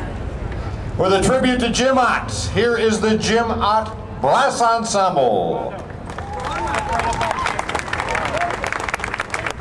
The crowd clapping while the man is giving speech